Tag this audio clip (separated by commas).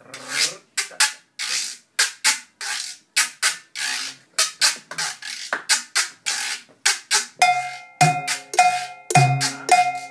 playing guiro